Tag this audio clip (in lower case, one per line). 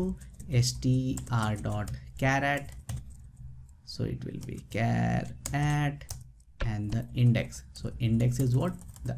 reversing beeps